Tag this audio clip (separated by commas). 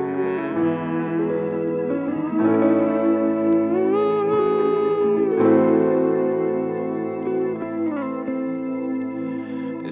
Music